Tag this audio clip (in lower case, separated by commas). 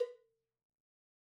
bell, cowbell